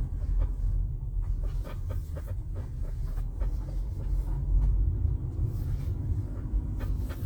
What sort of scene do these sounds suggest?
car